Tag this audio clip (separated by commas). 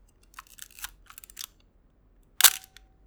Camera, Mechanisms